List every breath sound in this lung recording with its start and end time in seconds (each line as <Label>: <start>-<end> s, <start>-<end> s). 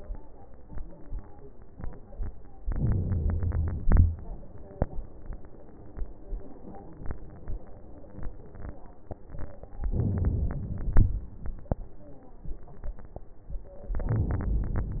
Inhalation: 2.62-3.85 s, 9.88-10.95 s, 13.90-15.00 s
Exhalation: 3.87-4.22 s, 10.94-11.30 s
Crackles: 2.62-3.85 s, 3.87-4.22 s, 9.95-10.71 s, 10.94-11.30 s, 14.07-15.00 s